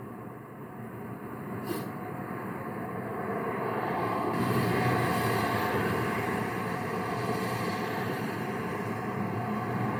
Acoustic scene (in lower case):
street